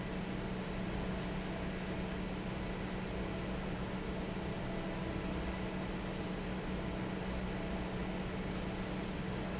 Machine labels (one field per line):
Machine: fan